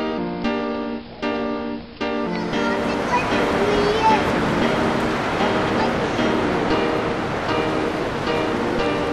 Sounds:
music
speech
run

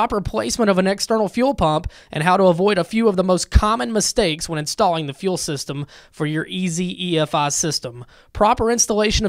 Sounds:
speech

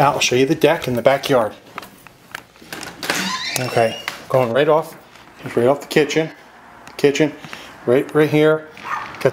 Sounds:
speech

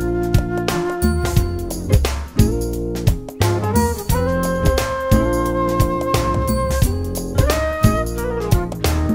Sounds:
music

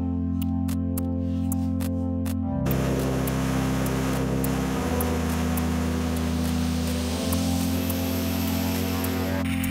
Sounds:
music

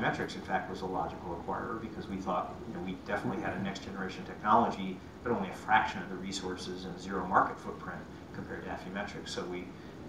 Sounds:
speech
inside a small room

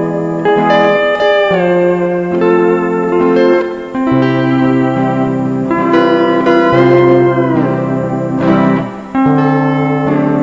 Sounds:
steel guitar
musical instrument
plucked string instrument
music
guitar
zither

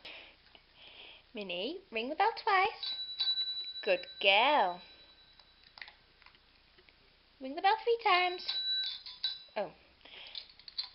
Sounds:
speech

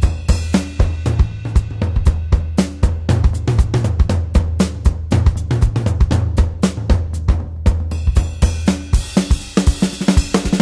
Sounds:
music

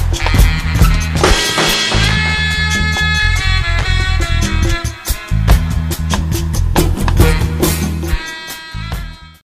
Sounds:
music

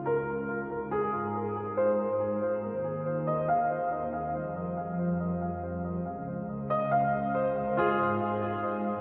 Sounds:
piano
music
electronic music

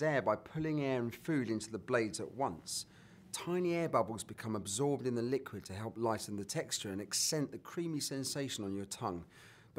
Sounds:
speech

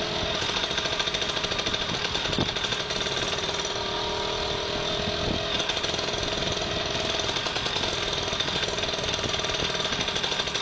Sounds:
vehicle

